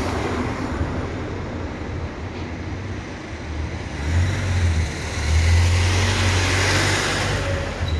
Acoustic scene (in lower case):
residential area